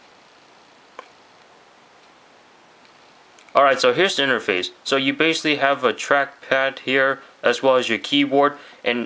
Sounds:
speech

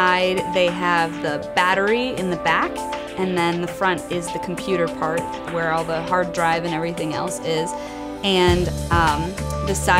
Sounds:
music, speech

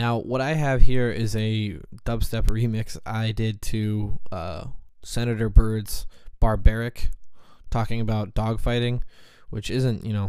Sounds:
speech

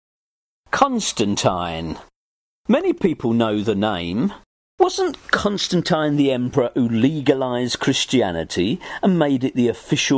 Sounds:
speech

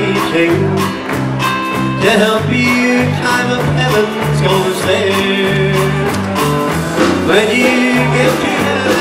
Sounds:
music, singing

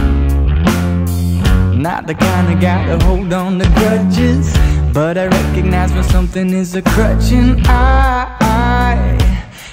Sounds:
soul music, blues, music

